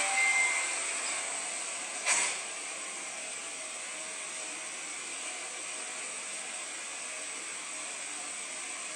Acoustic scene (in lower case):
subway station